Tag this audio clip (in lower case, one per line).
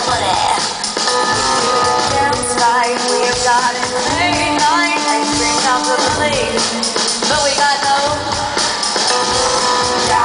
middle eastern music
jazz
music
soundtrack music